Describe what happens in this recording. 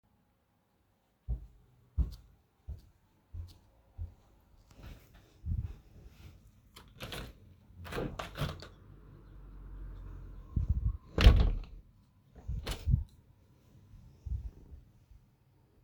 The doorbell rang twice and I walked toward the front door. When I reached the door, I opened it and then closed it again.